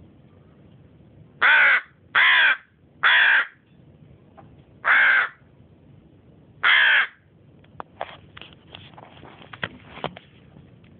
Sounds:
caw, crow cawing, crow

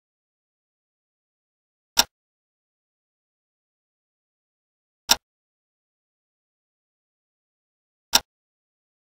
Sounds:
tick

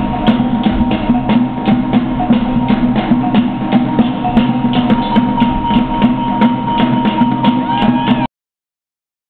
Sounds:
music

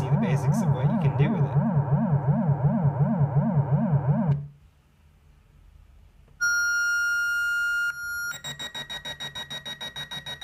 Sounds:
speech, inside a small room, synthesizer

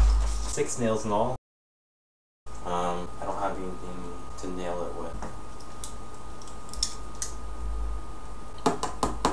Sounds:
speech

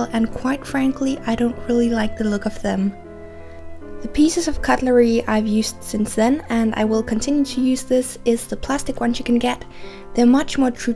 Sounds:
music, speech

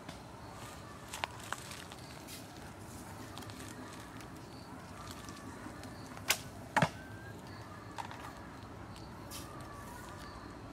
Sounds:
arrow

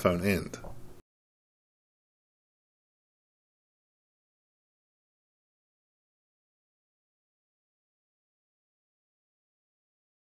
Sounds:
speech

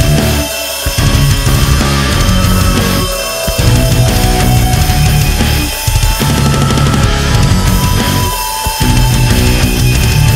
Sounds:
music

